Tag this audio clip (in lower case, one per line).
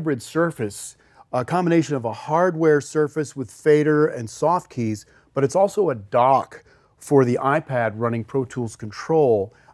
speech